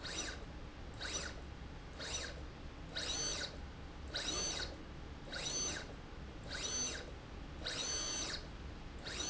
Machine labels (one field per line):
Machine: slide rail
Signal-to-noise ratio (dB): 6 dB